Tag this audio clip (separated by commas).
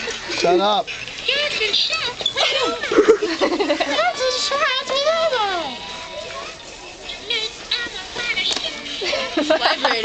Speech